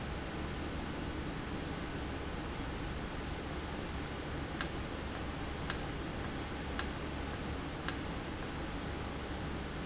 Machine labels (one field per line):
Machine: valve